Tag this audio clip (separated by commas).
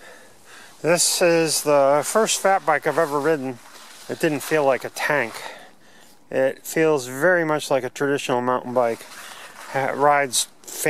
Speech